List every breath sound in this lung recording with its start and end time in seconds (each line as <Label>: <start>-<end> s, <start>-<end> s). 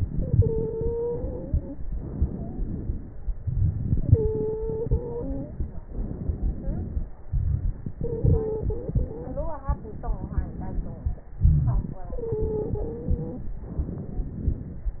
Inhalation: 0.00-1.82 s, 3.41-5.88 s, 7.23-9.64 s, 11.31-13.63 s
Exhalation: 1.82-3.37 s, 5.84-7.24 s, 9.63-11.30 s, 13.63-15.00 s
Stridor: 0.09-1.75 s, 2.23-2.61 s, 3.97-5.57 s, 8.01-9.54 s, 12.08-13.54 s
Crackles: 9.63-11.30 s, 13.63-15.00 s